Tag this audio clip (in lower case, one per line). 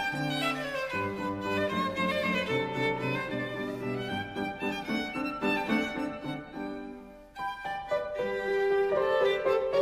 fiddle
music
musical instrument